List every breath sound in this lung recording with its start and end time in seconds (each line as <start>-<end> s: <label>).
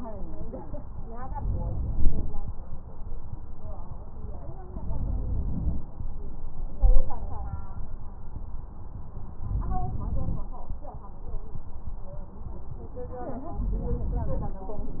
1.11-2.31 s: inhalation
1.11-2.31 s: crackles
4.59-5.80 s: inhalation
9.41-10.47 s: inhalation
9.41-10.47 s: crackles
13.53-14.60 s: inhalation